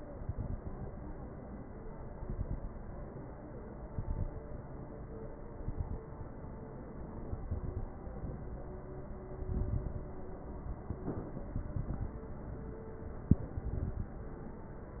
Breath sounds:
0.00-0.68 s: inhalation
0.00-0.68 s: crackles
1.98-2.66 s: inhalation
1.98-2.66 s: crackles
3.86-4.41 s: inhalation
3.86-4.41 s: crackles
5.53-6.08 s: inhalation
5.53-6.08 s: crackles
7.13-7.92 s: inhalation
7.13-7.92 s: crackles
9.35-10.14 s: inhalation
9.35-10.14 s: crackles
11.54-12.22 s: inhalation
11.54-12.22 s: crackles
13.44-14.12 s: inhalation
13.44-14.12 s: crackles

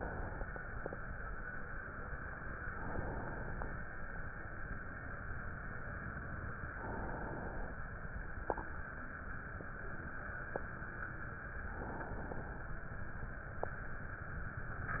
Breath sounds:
2.61-3.84 s: inhalation
6.66-7.89 s: inhalation
11.67-12.90 s: inhalation

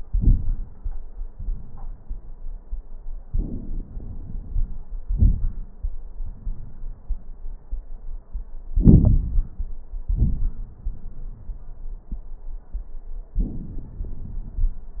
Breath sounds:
3.22-4.86 s: inhalation
3.22-4.86 s: crackles
5.07-5.81 s: exhalation
5.07-5.81 s: crackles
8.77-9.75 s: inhalation
8.77-9.75 s: crackles
10.05-10.74 s: exhalation
10.05-10.74 s: crackles
13.38-15.00 s: inhalation
13.38-15.00 s: crackles

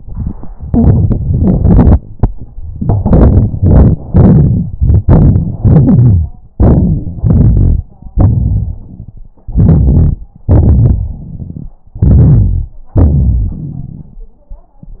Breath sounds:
0.63-1.20 s: inhalation
1.17-1.94 s: exhalation
2.71-3.59 s: inhalation
3.60-3.98 s: exhalation
4.09-4.74 s: inhalation
4.77-5.59 s: exhalation
5.61-6.32 s: inhalation
6.54-7.18 s: exhalation
6.54-7.18 s: crackles
7.21-7.85 s: inhalation
8.18-9.30 s: exhalation
9.49-10.19 s: inhalation
10.52-11.75 s: exhalation
10.52-11.75 s: crackles
12.00-12.77 s: inhalation
12.93-14.24 s: exhalation
12.93-14.24 s: crackles

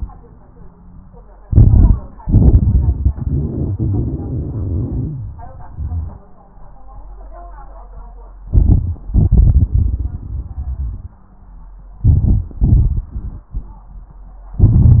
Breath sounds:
1.50-2.18 s: inhalation
1.50-2.18 s: crackles
2.19-5.44 s: exhalation
2.19-5.44 s: crackles
8.46-9.10 s: crackles
8.46-9.12 s: inhalation
9.12-11.22 s: exhalation
9.12-11.22 s: crackles
12.00-12.59 s: inhalation
12.00-12.59 s: crackles
12.60-14.24 s: exhalation
12.60-14.24 s: crackles
14.55-15.00 s: inhalation
14.55-15.00 s: crackles

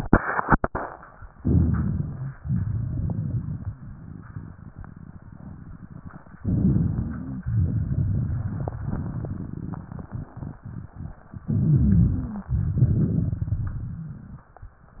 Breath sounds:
1.33-2.30 s: crackles
1.35-2.33 s: inhalation
2.39-3.74 s: exhalation
2.40-3.73 s: crackles
6.38-7.43 s: inhalation
6.39-7.44 s: rhonchi
7.46-10.09 s: crackles
7.47-10.08 s: exhalation
11.43-12.09 s: rhonchi
11.44-12.47 s: inhalation
12.09-12.47 s: wheeze
12.47-14.46 s: exhalation
12.47-13.87 s: crackles

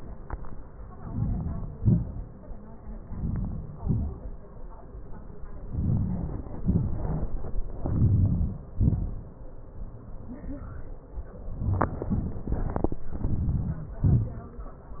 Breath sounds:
1.08-1.67 s: inhalation
1.85-2.31 s: exhalation
3.14-3.71 s: inhalation
3.87-4.42 s: exhalation
5.76-6.39 s: inhalation
6.69-7.21 s: exhalation
7.90-8.61 s: inhalation
8.84-9.38 s: exhalation
13.25-13.85 s: inhalation
14.07-14.44 s: exhalation

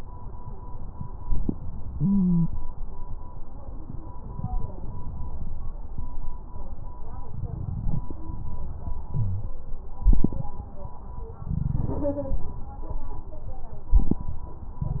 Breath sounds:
1.95-2.50 s: stridor
9.12-9.47 s: wheeze

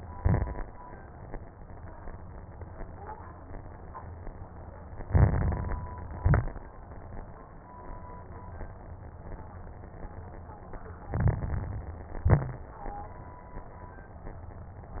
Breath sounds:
0.00-0.64 s: exhalation
0.00-0.64 s: crackles
5.05-6.06 s: inhalation
5.05-6.06 s: crackles
6.10-6.63 s: exhalation
6.10-6.63 s: crackles
11.08-12.14 s: inhalation
11.08-12.14 s: crackles
12.18-12.71 s: exhalation
12.18-12.71 s: crackles

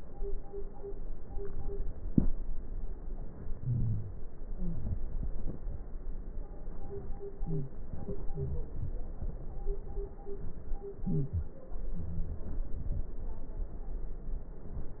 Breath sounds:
3.54-4.26 s: wheeze
4.37-4.95 s: wheeze
7.39-7.77 s: wheeze
8.30-8.70 s: wheeze
11.05-11.56 s: wheeze
11.96-12.47 s: wheeze

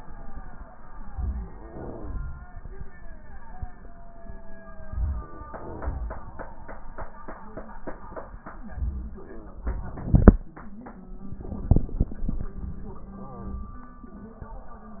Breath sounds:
1.41-2.29 s: crackles

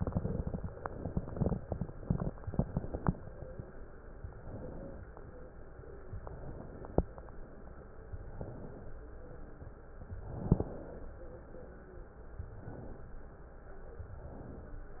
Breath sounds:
4.16-5.06 s: inhalation
6.21-7.11 s: inhalation
10.20-11.10 s: inhalation
10.20-11.10 s: inhalation
12.44-13.34 s: inhalation
14.03-14.94 s: inhalation

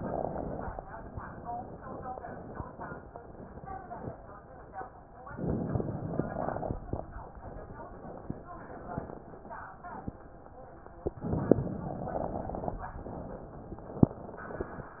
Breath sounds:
0.00-0.78 s: inhalation
0.00-0.78 s: crackles
5.27-6.76 s: inhalation
5.27-6.76 s: crackles
11.27-12.75 s: inhalation
11.27-12.75 s: crackles

